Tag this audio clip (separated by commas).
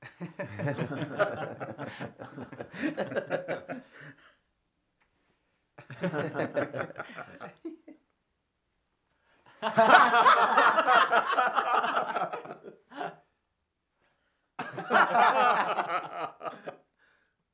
Laughter, Human voice